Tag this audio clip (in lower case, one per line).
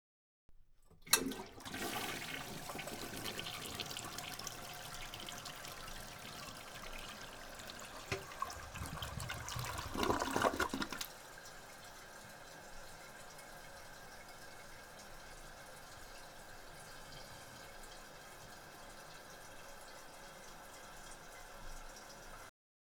home sounds
toilet flush